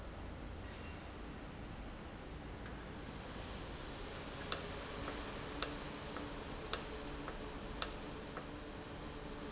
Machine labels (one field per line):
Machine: valve